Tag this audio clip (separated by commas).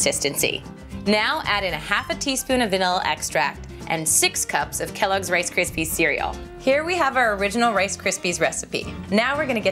Speech, Music